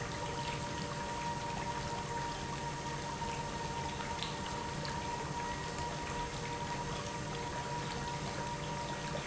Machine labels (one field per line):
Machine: pump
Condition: normal